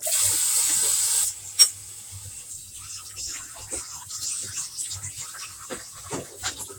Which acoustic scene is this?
kitchen